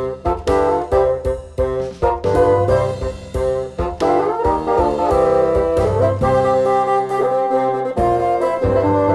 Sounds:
playing bassoon

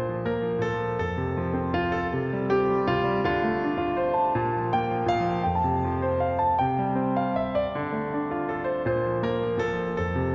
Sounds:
Music

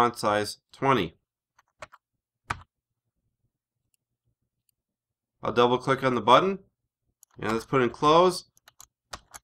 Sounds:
Speech

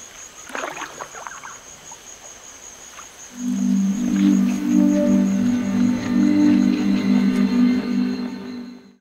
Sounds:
Boat, Music

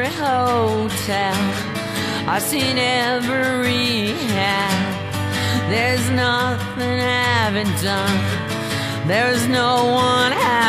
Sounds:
Music

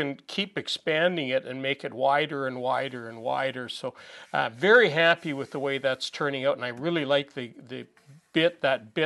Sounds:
planing timber

